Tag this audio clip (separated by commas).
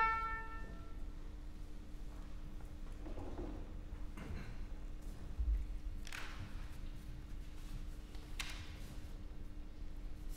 Harpsichord, Music